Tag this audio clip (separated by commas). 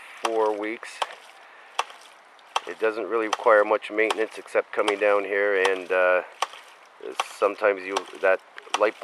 pumping water